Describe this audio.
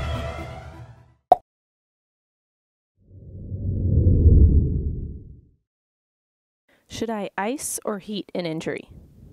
Music, followed by wind sounds and a woman talking